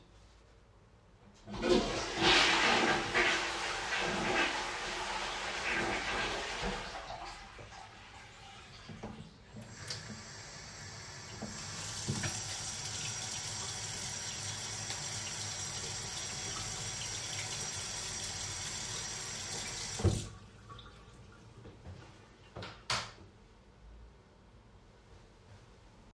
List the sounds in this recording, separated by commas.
toilet flushing, running water, light switch